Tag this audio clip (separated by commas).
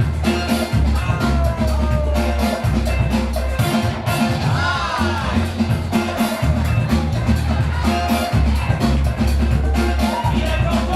Music, Speech